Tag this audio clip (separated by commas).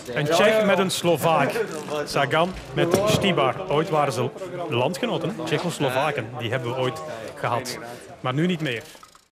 Speech